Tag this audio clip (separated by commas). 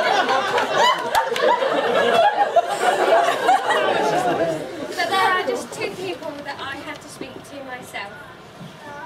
Narration, woman speaking, Speech